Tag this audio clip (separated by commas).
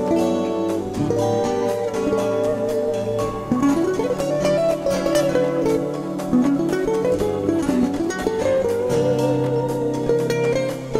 Mandolin, Music